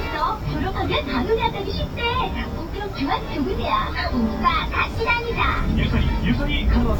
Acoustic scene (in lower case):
bus